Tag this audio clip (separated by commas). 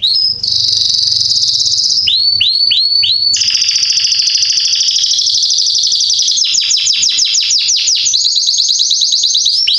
canary calling